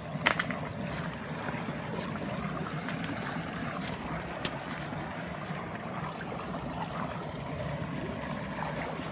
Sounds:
outside, rural or natural

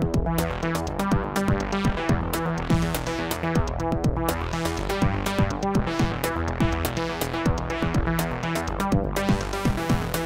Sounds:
electronic music, music, techno

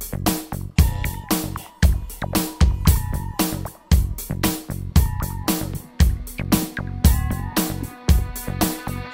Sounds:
music

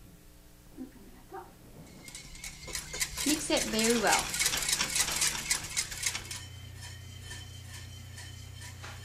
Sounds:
speech

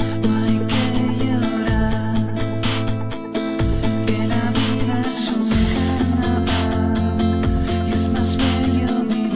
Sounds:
music of latin america, music

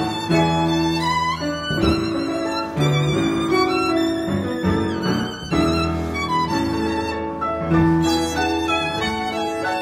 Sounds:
musical instrument, music, bowed string instrument, violin

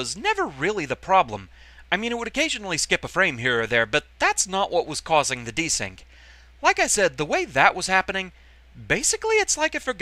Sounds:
speech

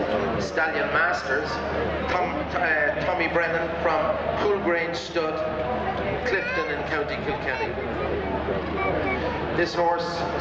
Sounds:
speech

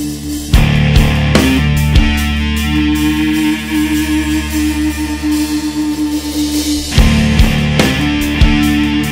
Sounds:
music, background music

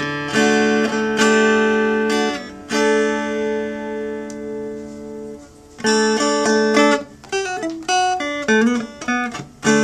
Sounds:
electric guitar, plucked string instrument, musical instrument, guitar, strum, music

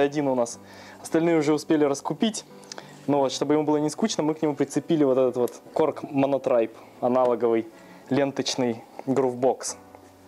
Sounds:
speech

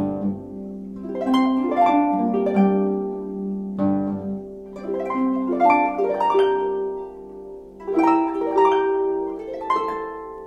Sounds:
musical instrument, bowed string instrument, music, harp, plucked string instrument

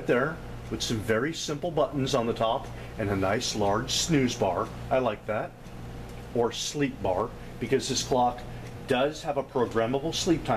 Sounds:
tick-tock, speech

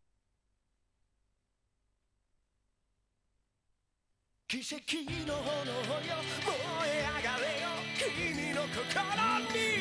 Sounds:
music

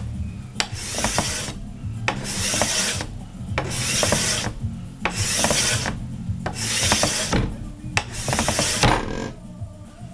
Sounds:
rub, wood, filing (rasp)

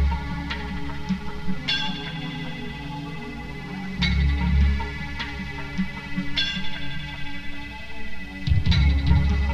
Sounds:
music, ping

